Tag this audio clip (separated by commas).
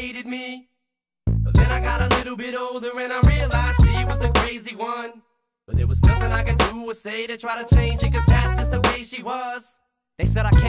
Hip hop music